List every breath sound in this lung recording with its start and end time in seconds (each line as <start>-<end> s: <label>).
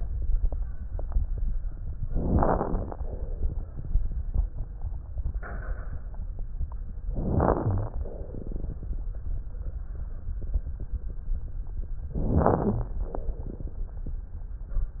2.13-3.00 s: inhalation
2.13-3.00 s: crackles
3.00-3.87 s: exhalation
7.13-8.01 s: inhalation
7.13-8.01 s: crackles
8.12-8.99 s: exhalation
12.14-13.02 s: crackles
12.18-13.05 s: inhalation
13.09-13.97 s: exhalation